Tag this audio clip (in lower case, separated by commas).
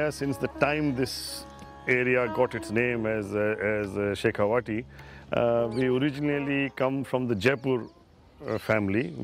music, speech